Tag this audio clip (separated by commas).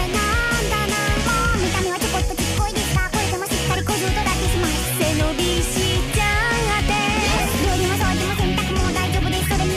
Acoustic guitar, Guitar, Musical instrument, Music